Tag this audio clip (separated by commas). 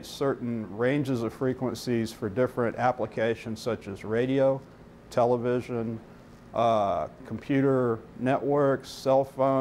Speech